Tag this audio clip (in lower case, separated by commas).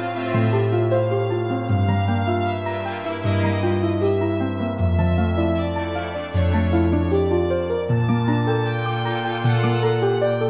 music